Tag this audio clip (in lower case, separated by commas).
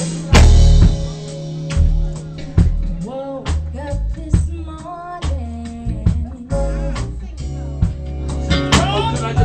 music, female singing